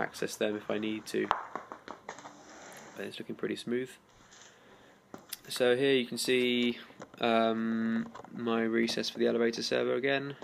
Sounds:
speech, inside a small room

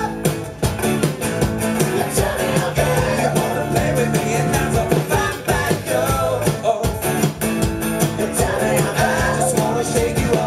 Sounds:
pizzicato

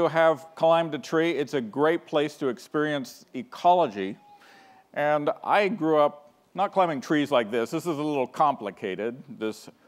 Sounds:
speech

